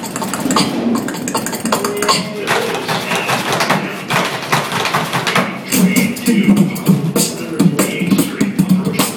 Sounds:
beatboxing, speech

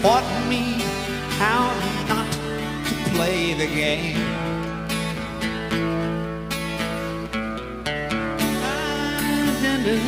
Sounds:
music

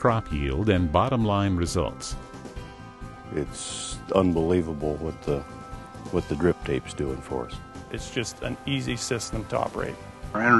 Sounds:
speech, music

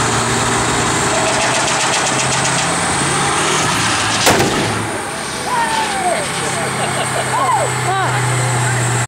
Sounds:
speech, vehicle

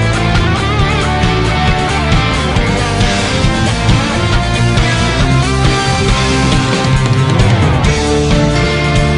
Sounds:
music, funk

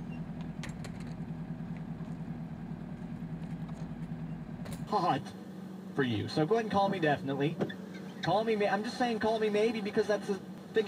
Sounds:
speech, walk

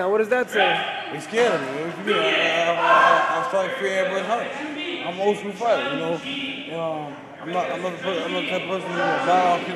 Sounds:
speech, inside a large room or hall

